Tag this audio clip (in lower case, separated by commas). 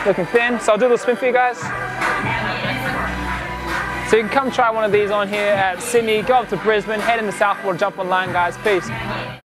speech, music